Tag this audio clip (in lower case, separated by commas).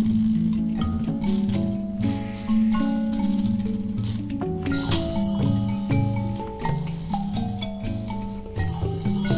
music